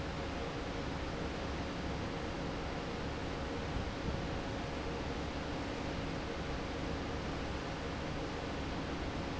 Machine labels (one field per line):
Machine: fan